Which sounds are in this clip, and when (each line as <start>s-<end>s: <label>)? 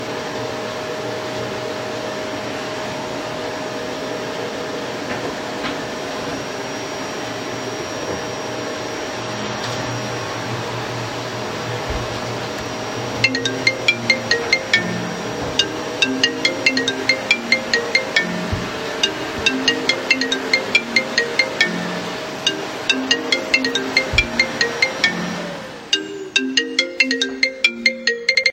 0.0s-25.8s: vacuum cleaner
13.1s-28.5s: phone ringing